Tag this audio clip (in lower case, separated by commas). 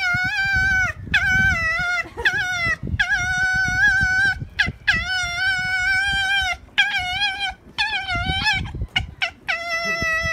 fox barking